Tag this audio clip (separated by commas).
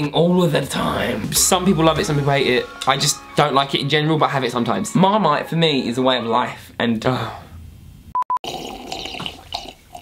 Gurgling